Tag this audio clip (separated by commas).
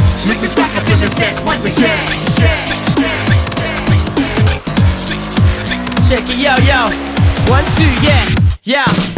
Music